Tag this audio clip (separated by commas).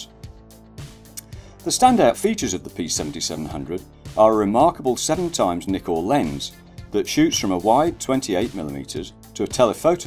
Speech, Music